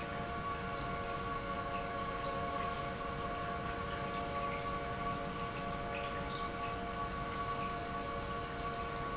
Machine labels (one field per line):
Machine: pump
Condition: normal